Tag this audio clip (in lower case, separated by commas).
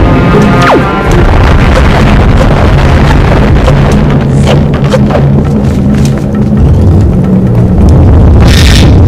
wind noise (microphone), music